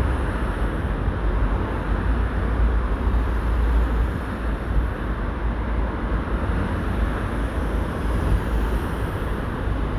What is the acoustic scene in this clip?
street